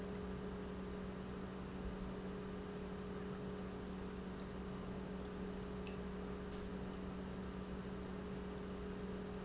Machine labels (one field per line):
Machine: pump